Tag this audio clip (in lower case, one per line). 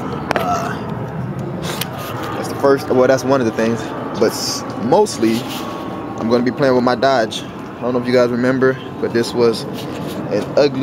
speech